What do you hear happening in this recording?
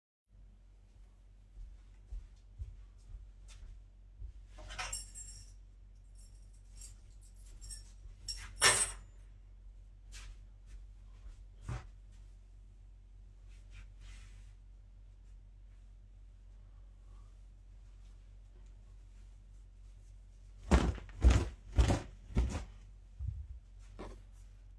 Walking. Getting my key and putting on another table. Putting box of washed clothes at the ground. Starting to hang washed clothes on clothing line. At the end I am flatting the trousers by wiping them in the air before hanging them.